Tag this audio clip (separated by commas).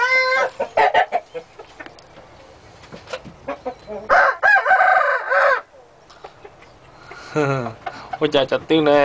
Animal, Speech